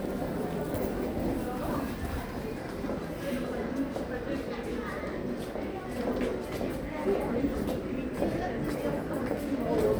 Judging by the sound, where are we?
in a crowded indoor space